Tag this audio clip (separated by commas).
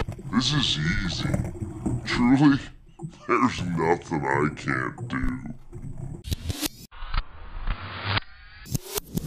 Music, Speech